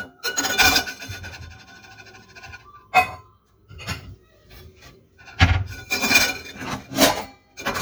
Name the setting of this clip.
kitchen